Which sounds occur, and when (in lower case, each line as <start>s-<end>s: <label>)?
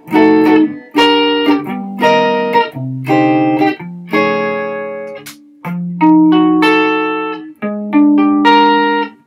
0.0s-9.2s: music
5.0s-5.1s: tick
5.2s-5.3s: tick